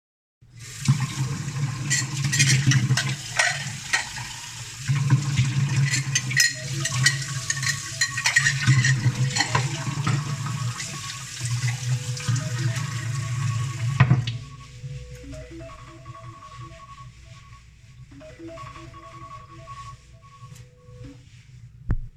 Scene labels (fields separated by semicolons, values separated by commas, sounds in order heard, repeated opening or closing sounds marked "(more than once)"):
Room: kitchen; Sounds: running water, cutlery and dishes, phone ringing